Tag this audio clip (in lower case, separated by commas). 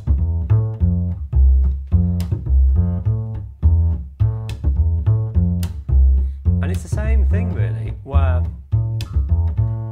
playing double bass